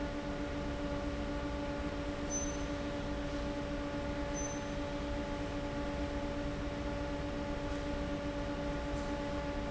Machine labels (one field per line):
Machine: fan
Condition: abnormal